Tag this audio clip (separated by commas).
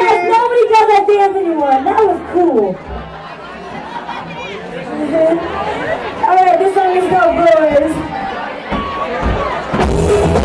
Music, Speech